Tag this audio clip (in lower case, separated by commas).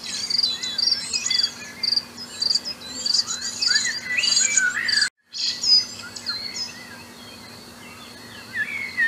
bird